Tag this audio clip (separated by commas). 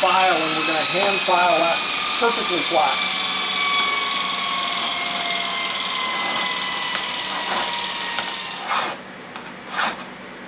Tools, Speech